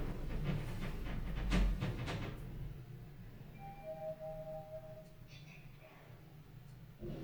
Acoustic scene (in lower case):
elevator